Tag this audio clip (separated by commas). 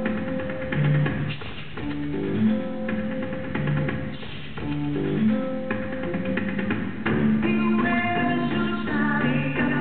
Music